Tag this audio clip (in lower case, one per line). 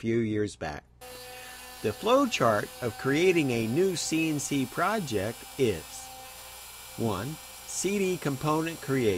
speech